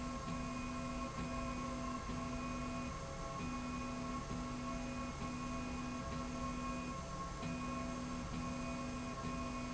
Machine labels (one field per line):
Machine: slide rail